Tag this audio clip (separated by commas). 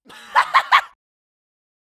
Human voice, Laughter